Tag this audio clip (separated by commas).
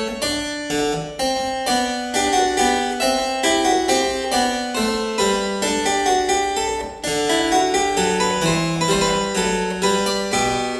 playing harpsichord